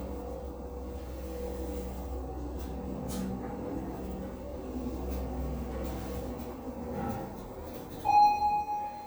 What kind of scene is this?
elevator